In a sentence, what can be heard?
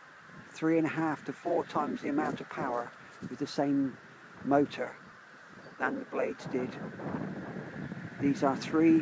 A man talks while wind blows strongly